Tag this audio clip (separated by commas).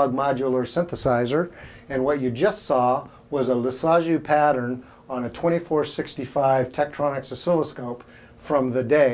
Speech